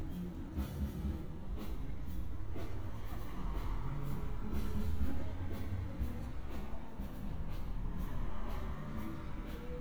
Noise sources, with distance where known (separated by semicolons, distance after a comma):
music from a fixed source, far